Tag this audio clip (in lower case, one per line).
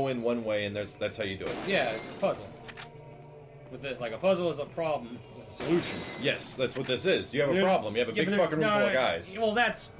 speech